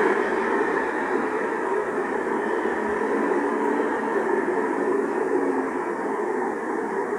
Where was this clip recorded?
on a street